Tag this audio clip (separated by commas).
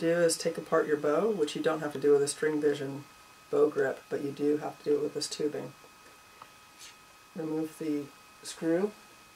Speech